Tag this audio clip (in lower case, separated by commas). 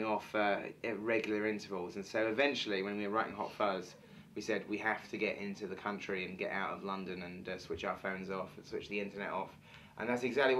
speech